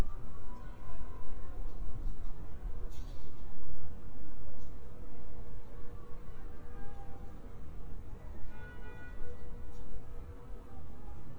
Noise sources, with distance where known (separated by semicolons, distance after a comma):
car horn, far; person or small group shouting, far